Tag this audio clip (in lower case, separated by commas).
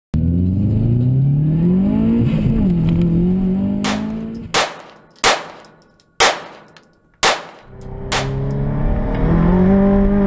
car, outside, urban or man-made, vehicle